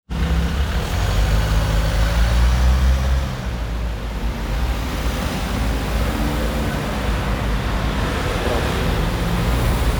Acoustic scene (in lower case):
street